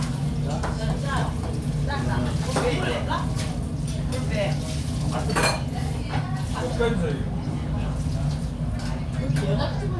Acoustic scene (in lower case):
crowded indoor space